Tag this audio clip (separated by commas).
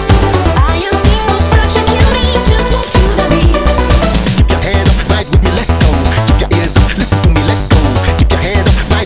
Music